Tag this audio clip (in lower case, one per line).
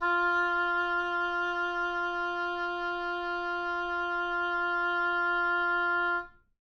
music
wind instrument
musical instrument